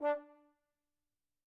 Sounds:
Brass instrument, Musical instrument, Music

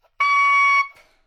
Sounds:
Wind instrument, Music, Musical instrument

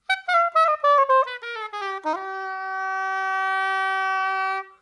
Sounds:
Music, Musical instrument, Wind instrument

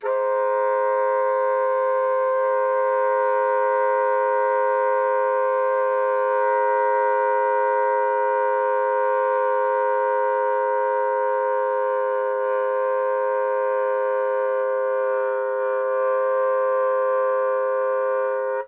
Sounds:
Musical instrument, woodwind instrument, Music

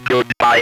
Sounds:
Speech, Human voice

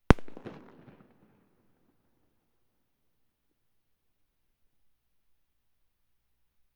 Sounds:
Fireworks, Explosion

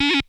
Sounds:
Music, Musical instrument

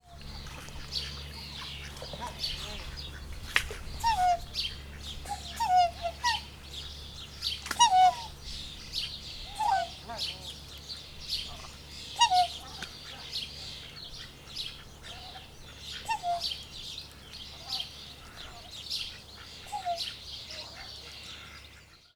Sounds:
Animal, Wild animals, Bird, bird call

